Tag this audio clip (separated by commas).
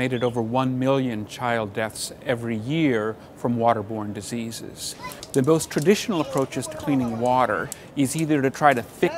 Speech